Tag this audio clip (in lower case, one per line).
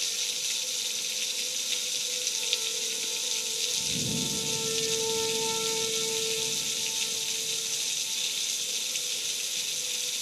rain